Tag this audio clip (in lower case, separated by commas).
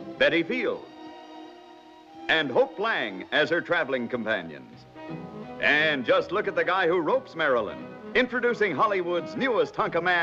music, speech